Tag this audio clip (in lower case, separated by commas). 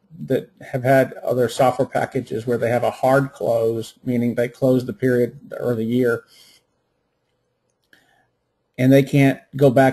speech